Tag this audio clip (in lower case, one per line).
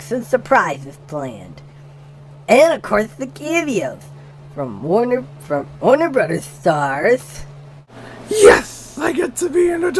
speech